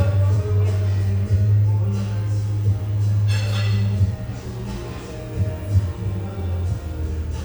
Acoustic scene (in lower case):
cafe